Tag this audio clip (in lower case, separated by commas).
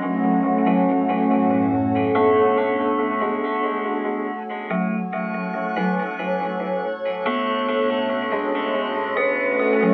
music, soundtrack music